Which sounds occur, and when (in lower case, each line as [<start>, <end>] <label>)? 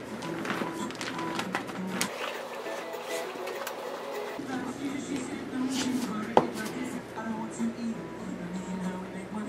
[0.00, 9.45] television
[0.17, 1.74] crinkling
[1.92, 2.33] crinkling
[2.13, 4.38] stir
[3.45, 3.69] generic impact sounds
[4.44, 8.04] female speech
[5.68, 6.03] generic impact sounds
[6.33, 6.79] generic impact sounds
[8.40, 9.45] female speech